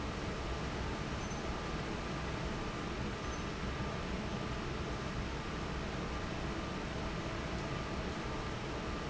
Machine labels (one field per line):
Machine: fan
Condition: normal